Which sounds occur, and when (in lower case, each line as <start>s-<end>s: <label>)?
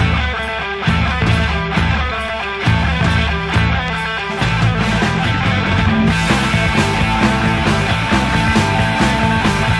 0.0s-9.7s: music